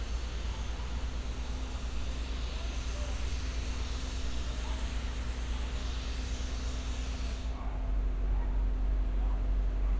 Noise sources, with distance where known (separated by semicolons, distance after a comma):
unidentified powered saw, near